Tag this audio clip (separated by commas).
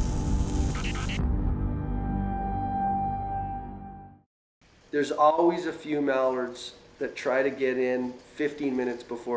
Speech, Music